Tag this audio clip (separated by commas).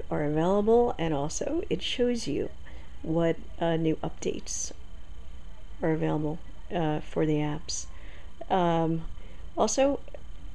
Speech